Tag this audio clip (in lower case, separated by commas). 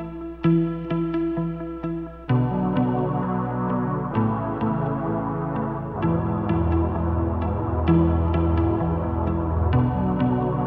music, musical instrument